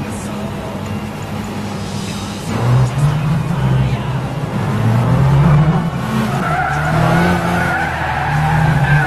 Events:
[0.00, 9.05] race car
[0.00, 9.05] video game sound
[0.74, 0.83] clicking
[1.15, 1.21] clicking
[1.34, 1.41] clicking
[1.42, 2.40] sound effect
[4.33, 5.81] revving
[6.25, 9.05] tire squeal
[6.73, 6.79] clicking

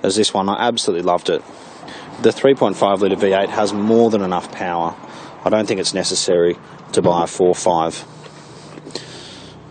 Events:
[0.00, 9.70] motor vehicle (road)
[0.00, 9.70] wind
[0.01, 1.38] male speech
[1.43, 1.82] breathing
[2.15, 4.99] male speech
[4.94, 5.36] breathing
[5.38, 6.51] male speech
[6.88, 8.01] male speech
[8.11, 8.75] breathing
[8.90, 9.55] breathing

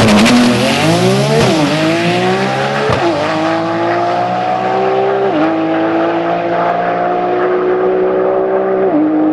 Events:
[0.00, 9.32] car
[0.01, 9.32] accelerating

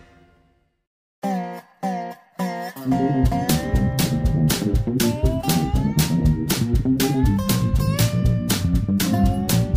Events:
[0.00, 0.83] music
[1.18, 9.75] music

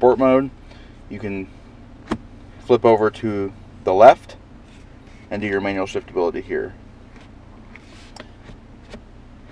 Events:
[0.00, 0.46] male speech
[0.00, 9.51] car
[0.65, 0.94] breathing
[1.08, 1.44] male speech
[2.07, 2.20] generic impact sounds
[2.67, 3.48] male speech
[3.83, 4.34] male speech
[4.64, 4.82] surface contact
[5.03, 5.29] surface contact
[5.29, 6.73] male speech
[7.12, 7.33] generic impact sounds
[7.56, 7.82] generic impact sounds
[7.76, 8.12] surface contact
[8.14, 8.23] tick
[8.37, 8.55] generic impact sounds
[8.80, 9.03] generic impact sounds

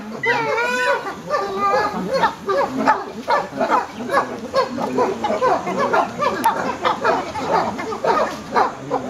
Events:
[0.00, 9.05] animal

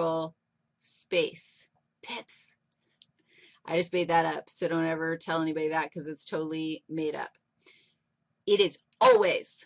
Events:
[0.00, 0.39] woman speaking
[0.00, 9.65] background noise
[0.82, 1.74] woman speaking
[1.73, 1.86] generic impact sounds
[2.02, 2.56] woman speaking
[2.67, 2.80] clicking
[2.99, 3.24] clicking
[3.27, 3.60] breathing
[3.67, 6.79] woman speaking
[6.93, 7.38] woman speaking
[7.31, 7.43] clicking
[8.48, 8.86] woman speaking
[8.90, 9.01] clicking
[9.02, 9.65] woman speaking

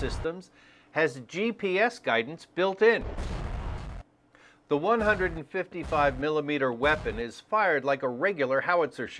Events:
[0.00, 0.24] artillery fire
[0.00, 0.46] male speech
[0.00, 9.15] background noise
[0.46, 0.93] breathing
[0.99, 2.42] male speech
[2.57, 3.04] male speech
[3.02, 4.09] artillery fire
[4.33, 4.65] breathing
[4.71, 9.15] male speech
[5.02, 5.27] artillery fire
[5.88, 6.13] artillery fire
[6.89, 7.08] artillery fire

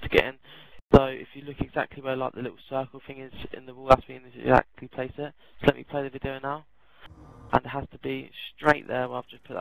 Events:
[0.00, 0.36] man speaking
[0.00, 0.79] background noise
[0.40, 0.77] breathing
[0.89, 4.63] man speaking
[0.89, 7.06] background noise
[4.75, 5.30] man speaking
[5.37, 5.56] breathing
[5.59, 6.64] man speaking
[6.72, 7.07] breathing
[7.05, 7.58] mechanisms
[7.50, 9.60] man speaking
[8.59, 9.60] mechanisms

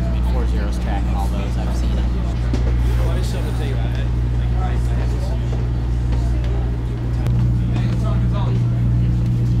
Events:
[0.00, 2.02] male speech
[0.00, 8.54] conversation
[0.00, 9.60] mechanisms
[2.49, 2.60] generic impact sounds
[2.79, 4.09] male speech
[3.90, 3.99] tick
[4.40, 5.65] male speech
[4.82, 4.89] tick
[5.47, 5.57] generic impact sounds
[6.08, 6.21] generic impact sounds
[6.08, 7.02] human voice
[6.38, 6.46] tick
[7.06, 7.17] generic impact sounds
[7.14, 7.27] human voice
[7.23, 7.31] tick
[7.55, 8.56] male speech
[7.69, 7.74] generic impact sounds
[7.87, 7.94] tick
[8.64, 9.05] human voice
[9.19, 9.28] tick
[9.43, 9.60] surface contact

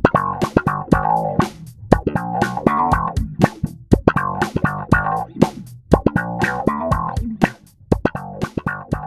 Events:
[0.00, 9.05] effects unit
[0.00, 9.05] music

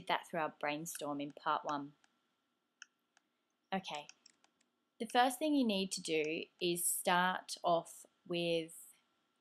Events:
[0.00, 0.49] female speech
[0.00, 9.40] mechanisms
[0.58, 1.91] female speech
[0.92, 1.01] clicking
[1.25, 1.34] clicking
[1.65, 1.73] clicking
[1.98, 2.08] clicking
[2.79, 2.85] clicking
[3.12, 3.21] clicking
[3.68, 4.06] female speech
[3.89, 3.97] clicking
[4.06, 4.14] clicking
[4.22, 4.28] clicking
[4.40, 4.45] clicking
[4.55, 4.62] clicking
[4.99, 6.43] female speech
[5.04, 5.15] clicking
[6.21, 6.25] clicking
[6.55, 6.61] clicking
[6.58, 8.05] female speech
[8.25, 9.03] female speech

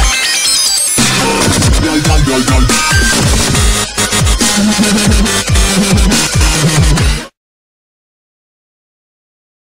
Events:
[0.00, 7.30] music

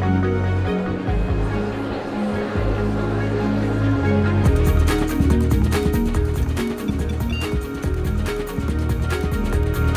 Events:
[0.00, 9.95] music
[7.29, 7.45] bleep

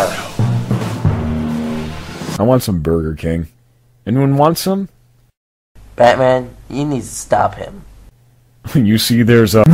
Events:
[0.00, 9.73] conversation
[0.23, 2.34] music
[5.75, 9.73] background noise
[8.60, 9.73] male speech

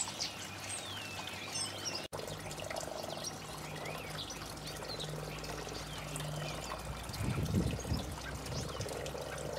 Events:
[0.00, 0.47] tweet
[0.00, 2.00] mechanisms
[0.00, 2.00] dribble
[0.65, 2.01] tweet
[1.45, 2.00] frog
[2.10, 2.31] frog
[2.11, 3.29] tweet
[2.12, 9.55] dribble
[2.50, 3.30] frog
[2.57, 2.82] generic impact sounds
[3.48, 4.02] frog
[3.51, 4.29] tweet
[4.44, 5.02] tweet
[4.51, 5.74] frog
[5.20, 6.71] tweet
[5.21, 5.68] human voice
[5.94, 6.63] frog
[6.02, 6.47] human voice
[6.75, 8.12] wind noise (microphone)
[6.90, 8.78] tweet
[7.35, 8.11] frog
[7.70, 8.58] human voice
[8.26, 8.84] wind noise (microphone)
[8.36, 9.55] frog

